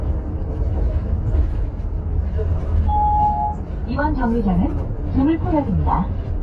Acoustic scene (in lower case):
bus